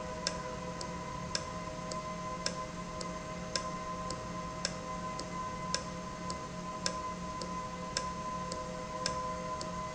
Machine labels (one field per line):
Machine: valve